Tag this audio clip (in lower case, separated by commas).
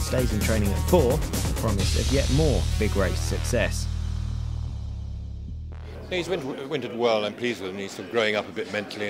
speech, music